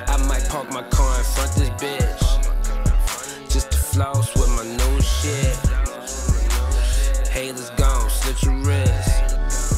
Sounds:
rapping

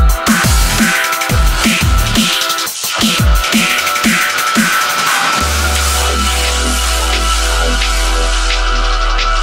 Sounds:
electronic music, drum and bass, electronic dance music, music

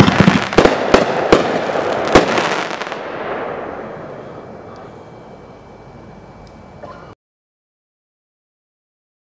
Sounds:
fireworks banging, silence, fireworks

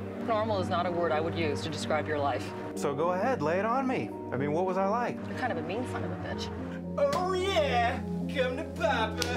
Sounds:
music, speech

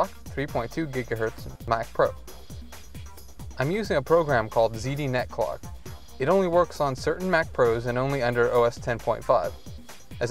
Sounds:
speech, music

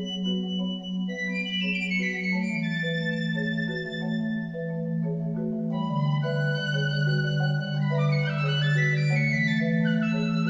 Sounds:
xylophone, flute, playing marimba, percussion, musical instrument, music, vibraphone

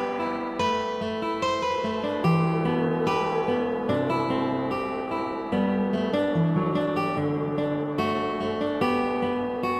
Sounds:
tender music, music

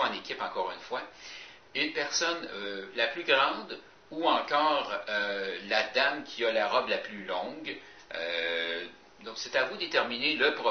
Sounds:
speech

